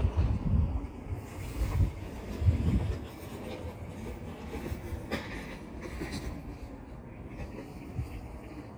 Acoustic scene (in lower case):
residential area